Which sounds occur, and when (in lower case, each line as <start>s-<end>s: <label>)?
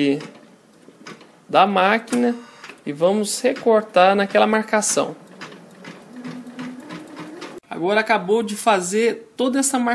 0.0s-0.3s: male speech
0.0s-0.4s: sewing machine
0.0s-9.9s: mechanisms
0.7s-1.3s: sewing machine
1.4s-2.3s: male speech
2.0s-2.7s: sewing machine
2.8s-5.2s: male speech
3.4s-3.7s: sewing machine
5.2s-7.6s: sewing machine
7.6s-9.1s: male speech
9.4s-9.9s: male speech